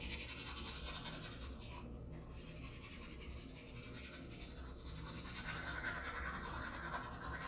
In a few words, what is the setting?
restroom